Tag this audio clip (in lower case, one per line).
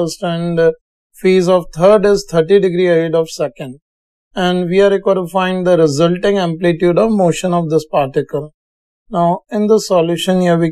speech